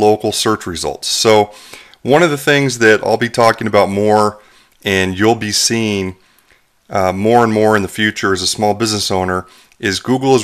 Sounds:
Speech

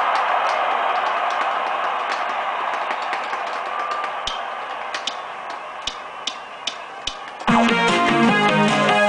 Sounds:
Musical instrument, Guitar, Plucked string instrument, Music

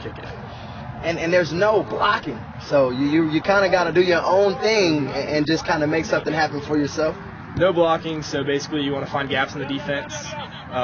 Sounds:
Speech

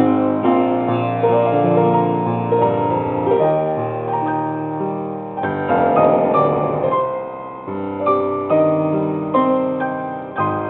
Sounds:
Music

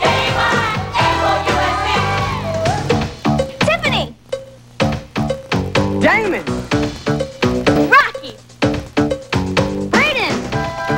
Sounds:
Music, Speech

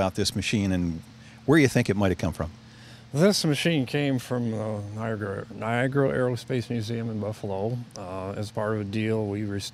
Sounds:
Speech

